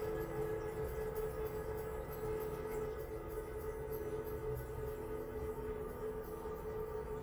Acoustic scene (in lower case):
restroom